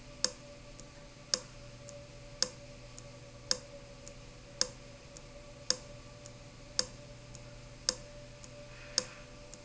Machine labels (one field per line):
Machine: valve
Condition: abnormal